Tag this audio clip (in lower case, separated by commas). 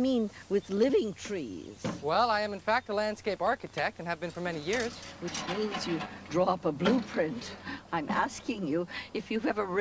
speech, outside, rural or natural